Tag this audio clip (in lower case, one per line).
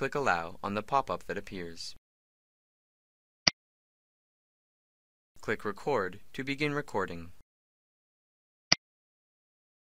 speech